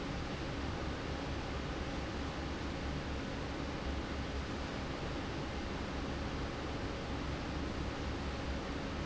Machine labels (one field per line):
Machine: fan